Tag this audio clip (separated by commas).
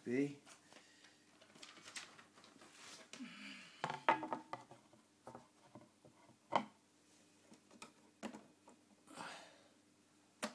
Speech